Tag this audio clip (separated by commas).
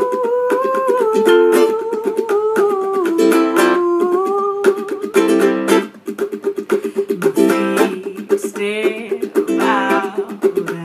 Musical instrument, Singing, Plucked string instrument, Music, Ukulele